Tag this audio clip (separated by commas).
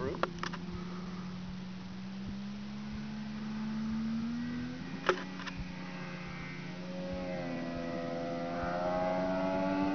Vehicle